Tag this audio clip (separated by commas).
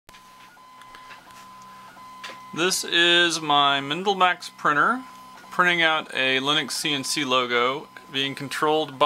Speech